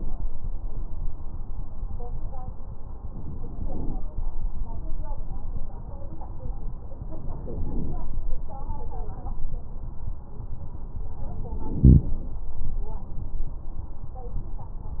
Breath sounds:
Inhalation: 3.08-3.99 s, 7.00-8.15 s, 11.47-12.44 s

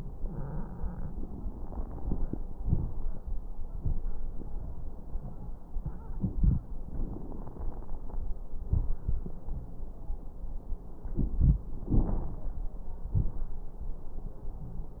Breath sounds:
Inhalation: 6.87-8.25 s, 11.90-12.59 s
Exhalation: 8.65-9.29 s, 13.12-13.56 s
Crackles: 6.87-8.25 s, 8.65-9.29 s, 11.90-12.59 s, 13.12-13.56 s

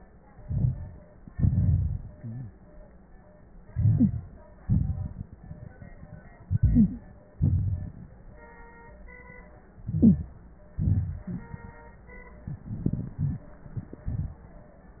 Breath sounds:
Inhalation: 0.42-0.99 s, 3.68-4.31 s, 6.47-7.19 s, 9.83-10.36 s, 12.68-13.45 s
Exhalation: 1.31-2.17 s, 4.61-5.29 s, 7.42-7.95 s, 10.76-11.29 s, 14.10-14.42 s
Rhonchi: 0.42-0.99 s, 1.31-2.17 s, 4.61-5.29 s, 7.42-7.95 s

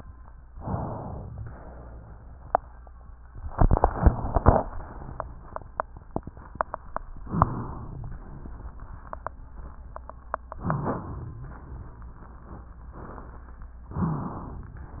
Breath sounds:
Inhalation: 0.51-1.33 s, 7.23-8.18 s, 10.55-11.50 s, 13.96-14.80 s

